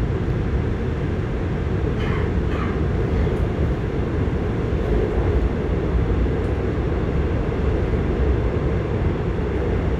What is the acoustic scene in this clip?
subway train